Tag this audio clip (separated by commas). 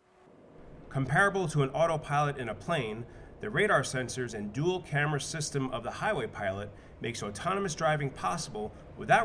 Speech, Vehicle